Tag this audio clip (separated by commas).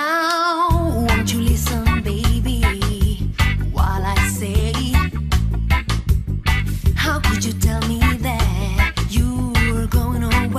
Tap, Music